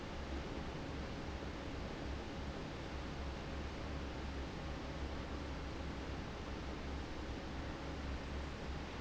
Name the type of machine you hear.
fan